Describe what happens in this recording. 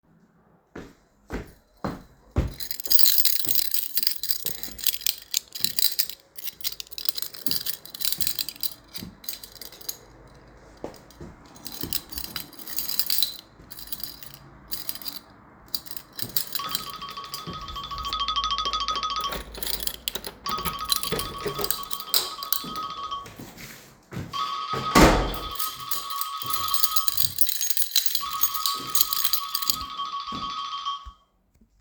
I held the device while approaching the doorway. I shook my keys and opened and closed the door while the phone was ringing at the same time, creating overlap between the events. Wind and faint sounds from outside the window are audible in the background.